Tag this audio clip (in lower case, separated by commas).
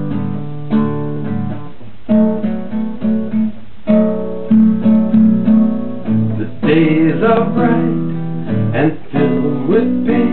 plucked string instrument, music, guitar, musical instrument